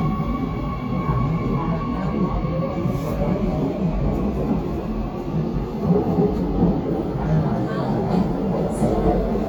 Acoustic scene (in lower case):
subway train